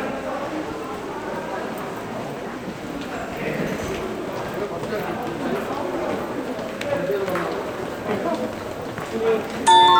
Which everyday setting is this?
subway station